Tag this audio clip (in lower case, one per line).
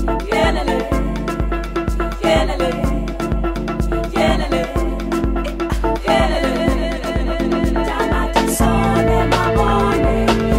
music